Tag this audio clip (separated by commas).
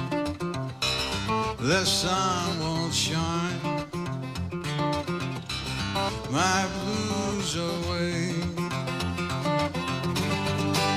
Music